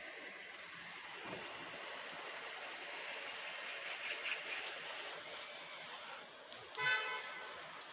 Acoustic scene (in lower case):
residential area